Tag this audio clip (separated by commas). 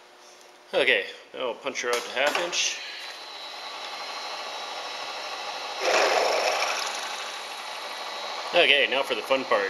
Tools, Speech